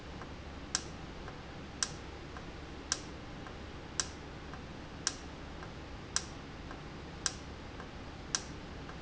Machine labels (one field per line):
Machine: valve